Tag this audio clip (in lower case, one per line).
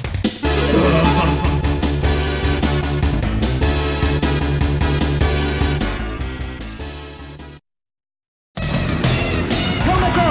music
speech